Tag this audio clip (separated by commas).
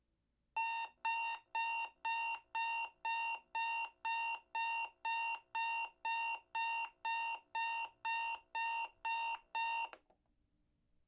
Alarm